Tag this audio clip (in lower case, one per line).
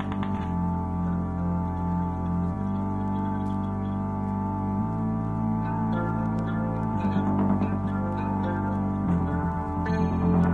music
musical instrument
plucked string instrument
strum
guitar
electric guitar